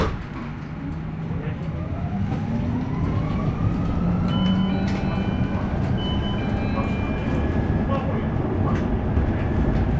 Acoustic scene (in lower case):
bus